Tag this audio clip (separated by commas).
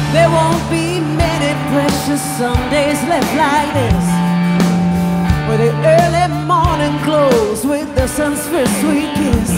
Music